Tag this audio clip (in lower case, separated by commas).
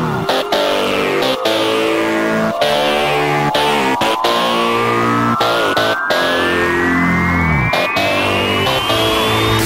music, dubstep